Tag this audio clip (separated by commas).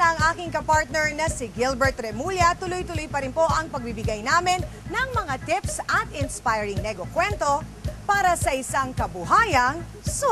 Speech, Music